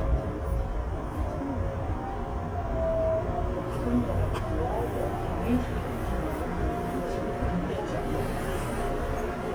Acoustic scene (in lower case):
subway train